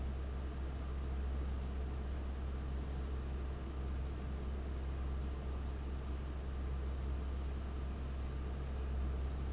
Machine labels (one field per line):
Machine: fan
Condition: abnormal